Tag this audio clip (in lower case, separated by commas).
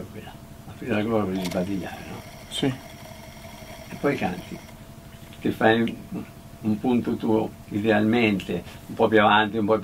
speech